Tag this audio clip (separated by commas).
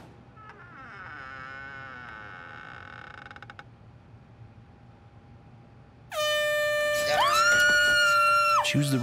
honking